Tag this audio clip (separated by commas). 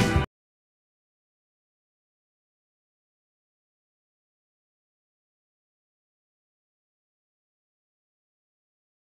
Music